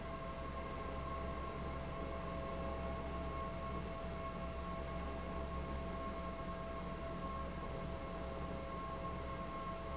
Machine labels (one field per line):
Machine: fan